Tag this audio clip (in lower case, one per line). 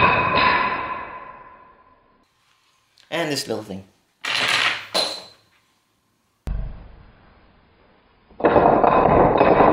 speech